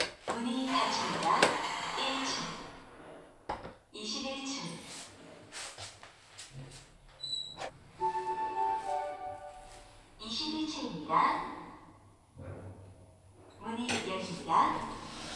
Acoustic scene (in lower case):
elevator